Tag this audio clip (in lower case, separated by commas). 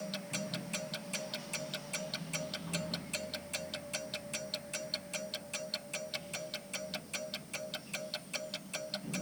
mechanisms, clock